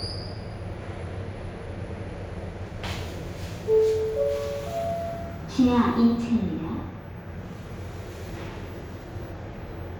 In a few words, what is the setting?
elevator